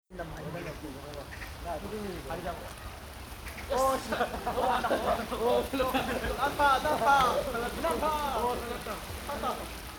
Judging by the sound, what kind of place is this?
park